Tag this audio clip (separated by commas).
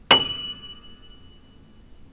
Piano, Musical instrument, Keyboard (musical), Music